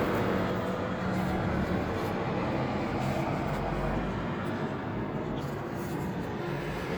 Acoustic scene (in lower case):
street